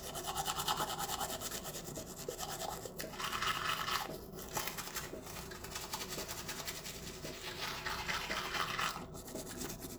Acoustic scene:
restroom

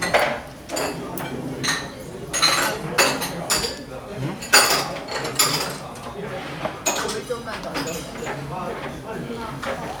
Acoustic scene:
restaurant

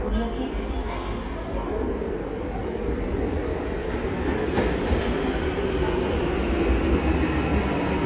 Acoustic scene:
subway station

